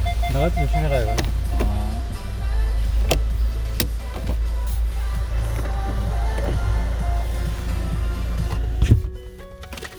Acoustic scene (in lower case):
car